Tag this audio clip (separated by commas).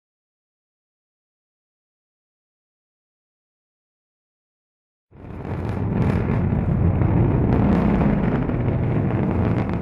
missile launch